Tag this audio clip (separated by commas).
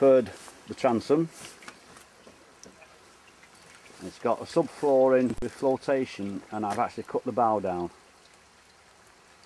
Speech